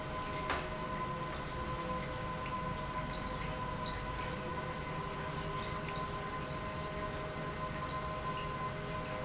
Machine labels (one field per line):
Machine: pump